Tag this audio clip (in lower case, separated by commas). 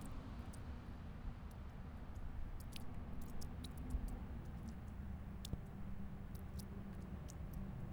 drip, liquid, water